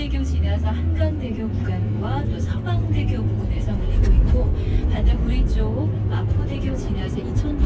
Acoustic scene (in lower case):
car